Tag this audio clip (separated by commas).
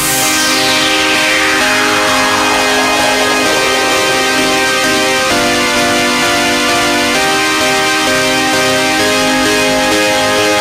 Music